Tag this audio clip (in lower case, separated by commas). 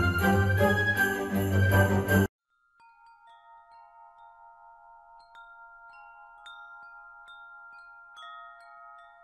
wind chime, chime